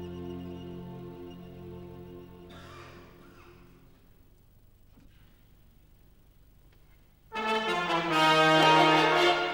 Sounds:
Music, Musical instrument, Violin

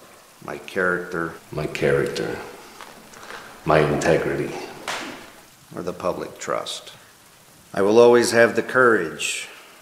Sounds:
Speech

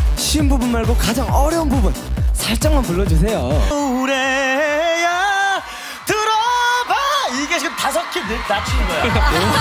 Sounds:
Music, Speech

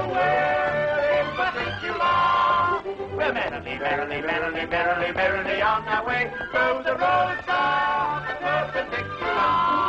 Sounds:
Music

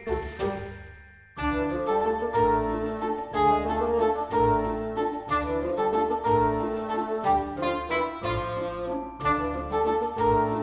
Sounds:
Music

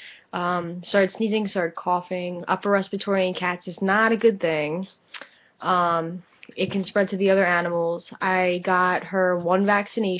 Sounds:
Speech

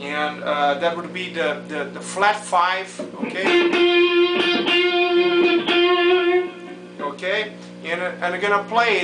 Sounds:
Speech, Music

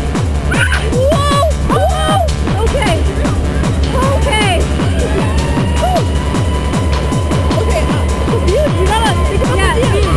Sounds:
Music, Speech

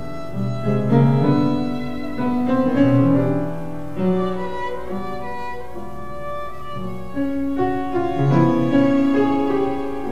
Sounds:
Music, Bowed string instrument, Violin

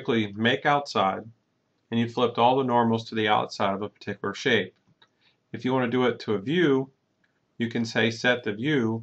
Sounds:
Speech

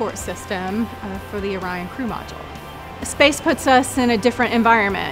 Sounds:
Speech, Music

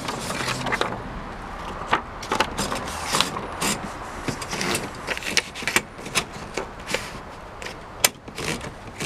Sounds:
typing on typewriter

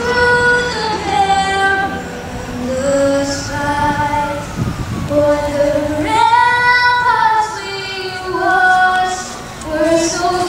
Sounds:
Female singing, Child singing

